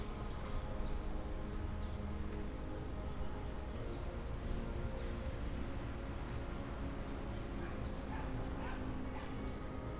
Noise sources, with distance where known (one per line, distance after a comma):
music from an unclear source, far